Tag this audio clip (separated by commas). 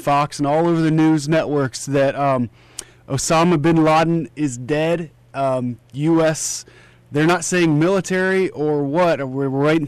Speech